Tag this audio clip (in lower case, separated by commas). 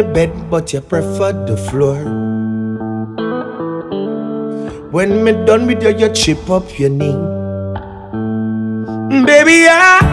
singing, music